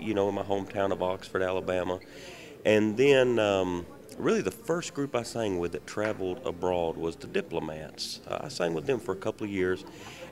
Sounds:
speech

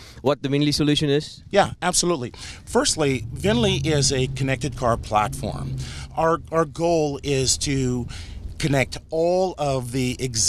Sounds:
speech

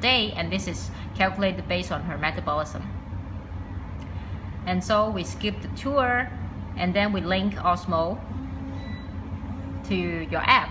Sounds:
speech

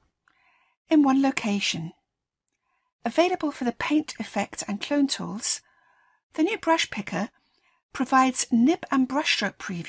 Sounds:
speech

